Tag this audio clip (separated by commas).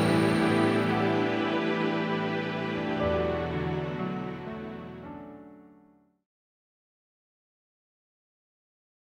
Electronica, Music